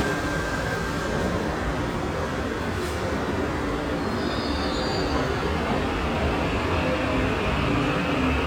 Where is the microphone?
in a subway station